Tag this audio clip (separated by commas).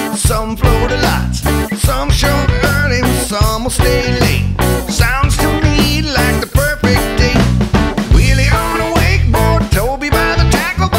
Music